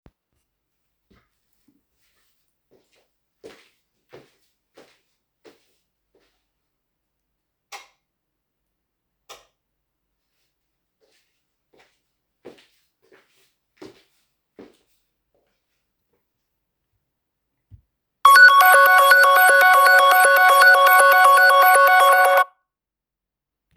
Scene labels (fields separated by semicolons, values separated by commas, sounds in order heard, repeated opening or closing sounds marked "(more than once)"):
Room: living room; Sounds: footsteps, light switch, phone ringing